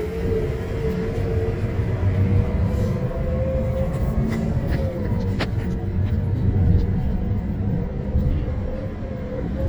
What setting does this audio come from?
bus